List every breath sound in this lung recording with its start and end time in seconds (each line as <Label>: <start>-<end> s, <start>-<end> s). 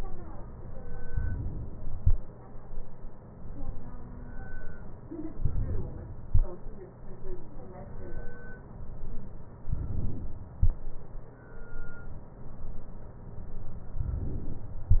Inhalation: 5.42-6.28 s, 9.68-10.54 s, 13.98-14.85 s